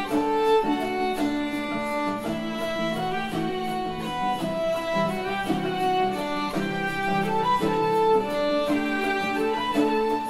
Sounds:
music

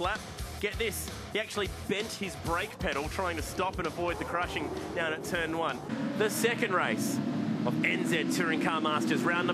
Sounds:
speech, vehicle, music, car passing by, car

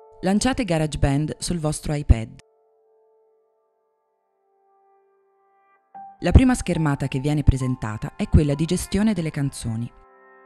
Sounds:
music, speech

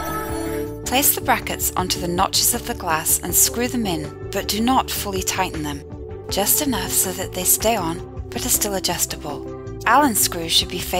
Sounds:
music, speech

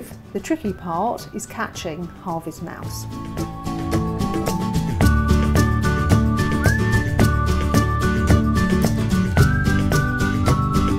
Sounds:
speech, music

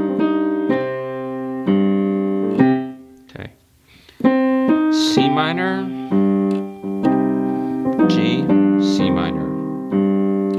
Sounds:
music, speech

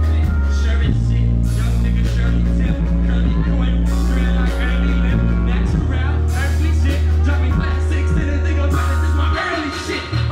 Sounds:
music

